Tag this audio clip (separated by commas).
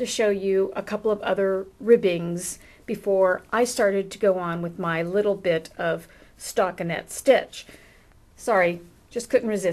Speech